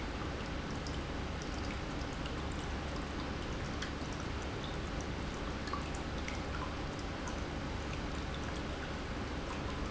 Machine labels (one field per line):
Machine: pump